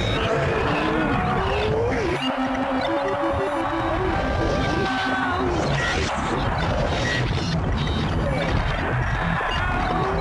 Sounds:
Music

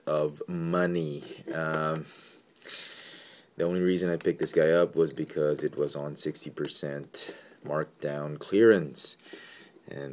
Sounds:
Speech

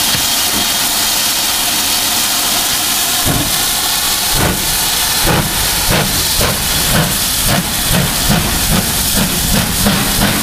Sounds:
Rail transport, Steam, Train, Vehicle, train wagon

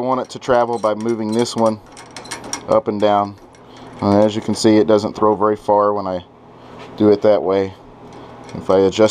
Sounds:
Speech

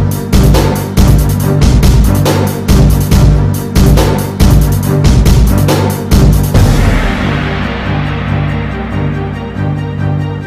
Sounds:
Music, Theme music

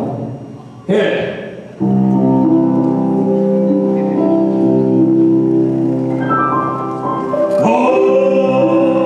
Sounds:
Music, Speech

